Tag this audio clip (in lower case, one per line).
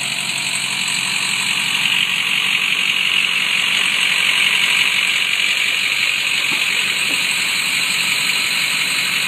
motor vehicle (road)
truck
vehicle